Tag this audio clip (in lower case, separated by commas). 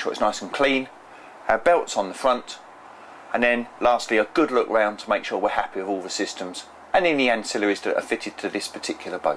speech